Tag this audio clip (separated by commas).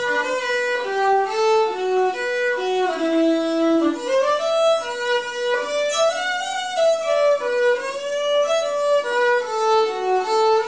Acoustic guitar, fiddle, Music, Musical instrument, Plucked string instrument